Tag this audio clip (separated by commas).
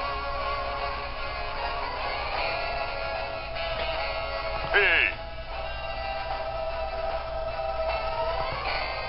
Music